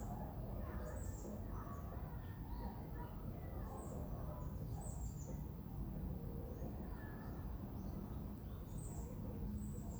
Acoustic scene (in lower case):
residential area